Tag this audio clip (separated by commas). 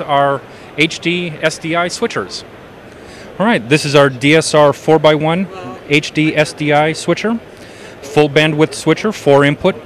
Speech